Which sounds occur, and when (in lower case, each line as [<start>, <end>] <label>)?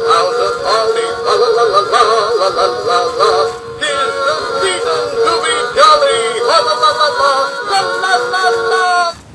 [0.00, 9.34] background noise
[0.01, 3.57] male singing
[0.01, 9.19] music
[3.84, 9.15] male singing